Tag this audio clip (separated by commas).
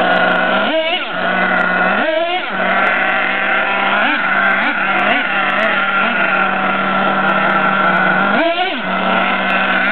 outside, urban or man-made